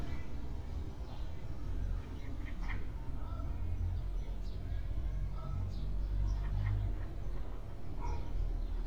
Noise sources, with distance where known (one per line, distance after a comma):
engine of unclear size
unidentified human voice, far